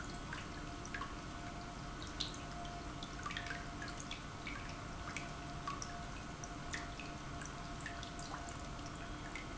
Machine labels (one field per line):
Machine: pump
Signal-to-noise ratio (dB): 6 dB